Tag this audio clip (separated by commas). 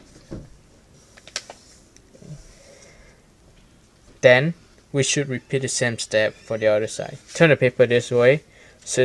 Speech